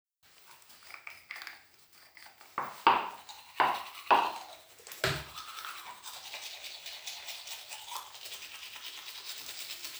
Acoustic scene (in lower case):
restroom